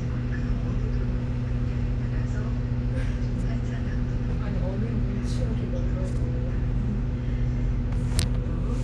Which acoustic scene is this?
bus